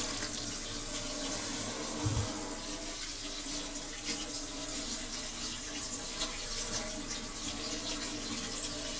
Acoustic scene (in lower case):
kitchen